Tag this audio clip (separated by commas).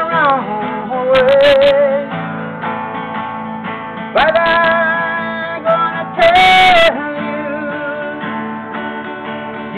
Music, Male singing